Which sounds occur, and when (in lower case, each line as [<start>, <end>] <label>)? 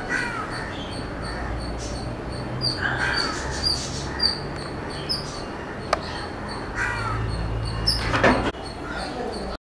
[0.00, 9.54] motor vehicle (road)
[0.00, 9.58] motor vehicle (road)
[0.05, 0.27] bird call
[0.06, 0.39] caw
[0.44, 1.07] bird call
[1.14, 1.47] caw
[1.15, 1.38] bird call
[1.55, 1.70] bird call
[1.74, 2.03] surface contact
[1.91, 2.06] bird call
[2.24, 2.45] bird call
[2.57, 3.41] bird call
[2.96, 3.27] caw
[3.36, 4.09] surface contact
[3.58, 3.79] bird call
[4.04, 4.41] bird call
[4.53, 4.74] bird call
[4.83, 5.02] bird call
[5.08, 5.25] bird call
[5.22, 5.40] surface contact
[5.31, 5.49] bird call
[5.76, 5.86] bird call
[5.88, 5.99] generic impact sounds
[6.01, 6.28] bird call
[6.43, 6.62] bird call
[6.71, 7.15] surface contact
[6.73, 7.15] caw
[6.95, 7.14] bird call
[7.26, 7.45] bird call
[7.60, 7.71] bird call
[7.85, 8.12] bird call
[8.00, 8.49] generic impact sounds
[8.27, 8.44] bird call
[8.63, 8.78] bird call
[8.81, 9.00] caw
[8.94, 9.12] bird call
[9.31, 9.49] bird call